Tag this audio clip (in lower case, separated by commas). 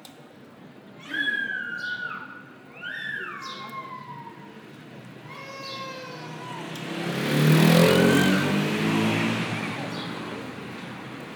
human voice, motorcycle, motor vehicle (road), vehicle